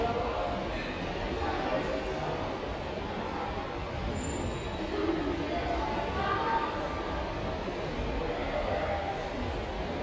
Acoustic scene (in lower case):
subway station